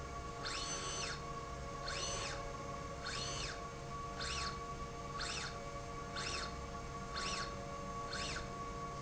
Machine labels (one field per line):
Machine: slide rail